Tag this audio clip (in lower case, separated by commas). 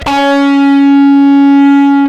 music, plucked string instrument, electric guitar, guitar, musical instrument